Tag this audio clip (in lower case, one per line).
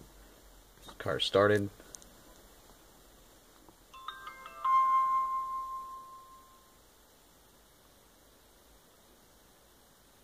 music
speech